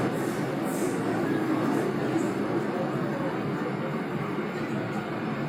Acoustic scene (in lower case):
subway train